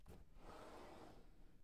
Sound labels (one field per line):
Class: drawer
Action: opening